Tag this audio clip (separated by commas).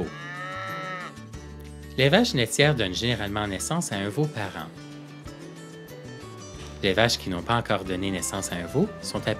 Speech, Music